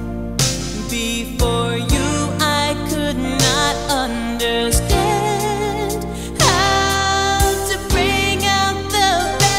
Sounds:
Music, Rhythm and blues

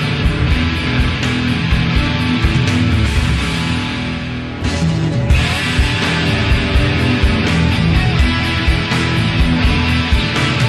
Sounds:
Music

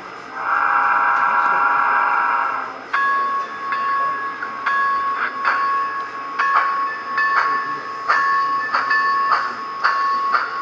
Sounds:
Speech

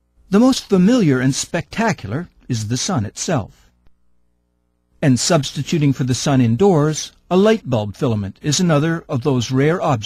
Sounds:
Speech, Speech synthesizer

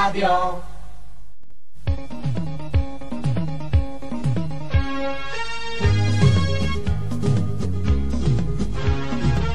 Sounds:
Music

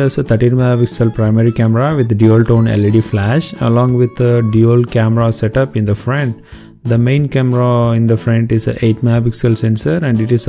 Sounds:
Music, Speech

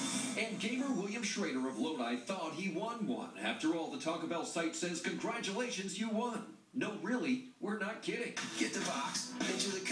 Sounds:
Speech

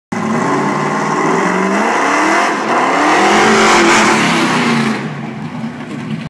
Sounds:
Vehicle, Truck

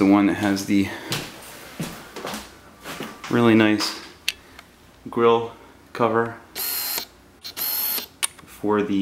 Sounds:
Speech, inside a small room

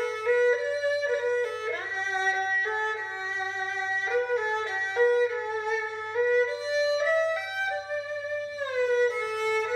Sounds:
playing erhu

